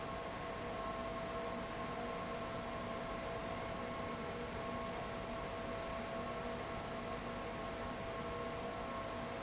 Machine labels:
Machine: fan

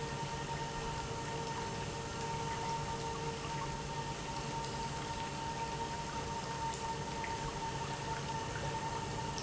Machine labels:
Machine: pump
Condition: normal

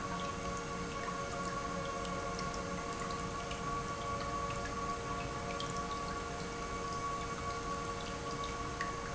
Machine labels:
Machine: pump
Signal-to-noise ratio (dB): -6 dB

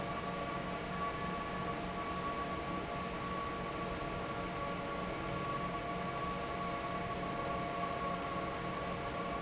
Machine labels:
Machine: fan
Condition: normal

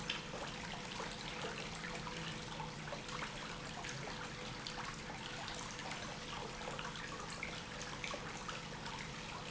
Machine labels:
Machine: pump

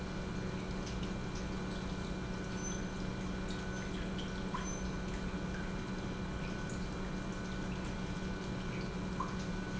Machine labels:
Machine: pump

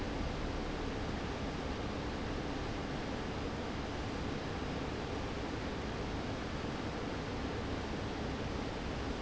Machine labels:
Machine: fan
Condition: abnormal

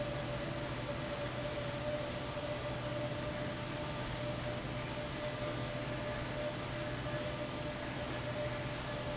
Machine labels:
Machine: fan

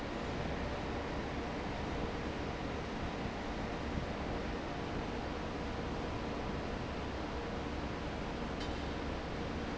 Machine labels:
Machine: fan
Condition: normal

